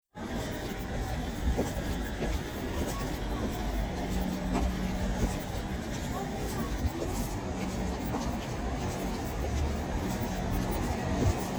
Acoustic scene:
street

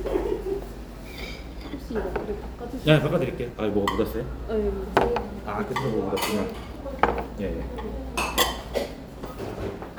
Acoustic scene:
restaurant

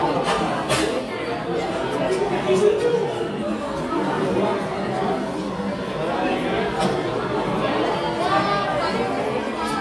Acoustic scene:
cafe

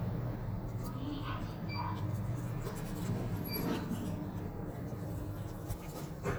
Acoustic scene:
elevator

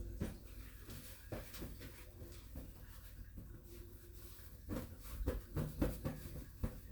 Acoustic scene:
restroom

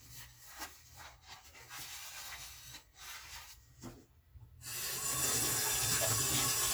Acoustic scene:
kitchen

